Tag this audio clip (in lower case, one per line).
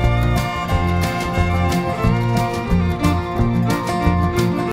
trance music